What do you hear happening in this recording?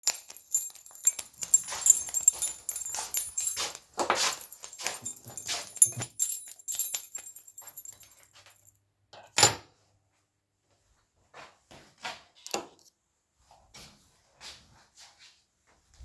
I walked with my keys and turned the lights on. I sat the keys down, turned off the lights and walked away.